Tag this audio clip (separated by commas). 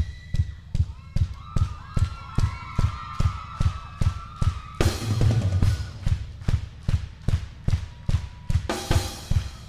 Music, Drum, Musical instrument, Drum kit, Bass drum